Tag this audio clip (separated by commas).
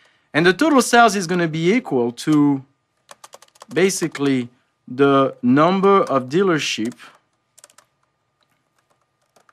Computer keyboard